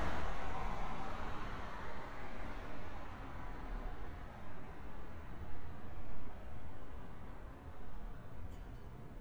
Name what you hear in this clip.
background noise